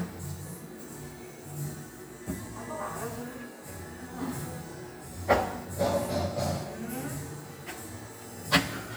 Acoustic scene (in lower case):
cafe